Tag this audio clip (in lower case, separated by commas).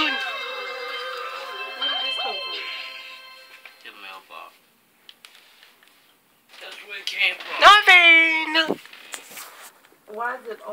music, speech